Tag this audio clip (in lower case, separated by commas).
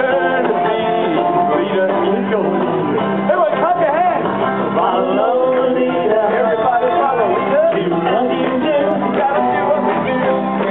music, speech, male singing